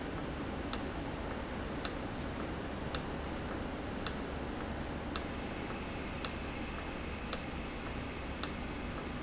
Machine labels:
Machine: valve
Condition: normal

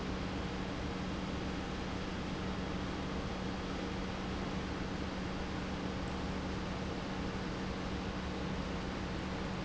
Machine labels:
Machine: pump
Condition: normal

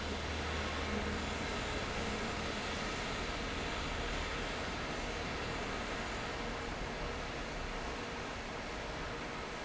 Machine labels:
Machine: fan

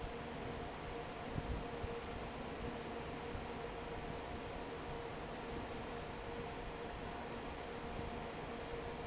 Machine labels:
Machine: fan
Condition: normal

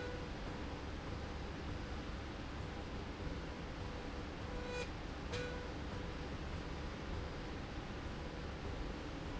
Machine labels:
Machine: slide rail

